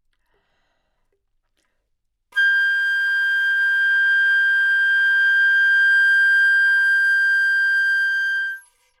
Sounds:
wind instrument
musical instrument
music

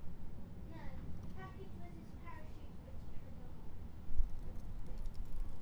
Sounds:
speech
human voice
child speech

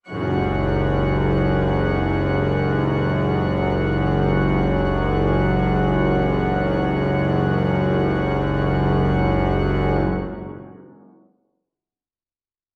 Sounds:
music
organ
musical instrument
keyboard (musical)

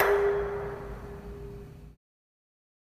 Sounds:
dishes, pots and pans
home sounds

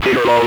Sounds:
human voice
speech

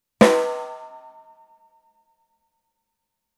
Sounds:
percussion
drum
music
snare drum
musical instrument

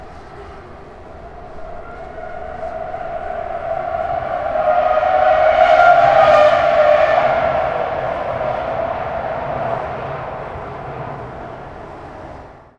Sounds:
car
vehicle
motor vehicle (road)
auto racing

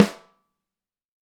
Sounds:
drum
musical instrument
snare drum
percussion
music

